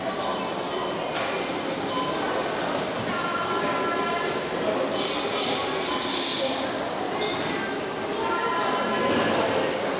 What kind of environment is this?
subway station